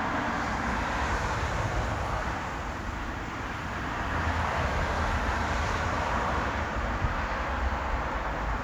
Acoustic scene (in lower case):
street